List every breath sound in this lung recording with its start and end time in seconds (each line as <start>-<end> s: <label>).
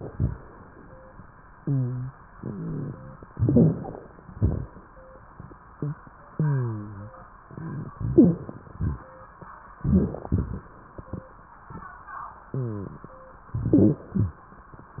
1.56-2.18 s: rhonchi
2.39-3.17 s: rhonchi
3.28-3.91 s: rhonchi
3.28-4.08 s: inhalation
4.23-4.86 s: exhalation
4.23-4.86 s: crackles
6.34-7.12 s: rhonchi
7.93-8.52 s: rhonchi
7.93-8.71 s: inhalation
8.73-9.19 s: exhalation
8.73-9.19 s: crackles
9.83-10.68 s: inhalation
13.59-14.12 s: inhalation
14.12-14.48 s: exhalation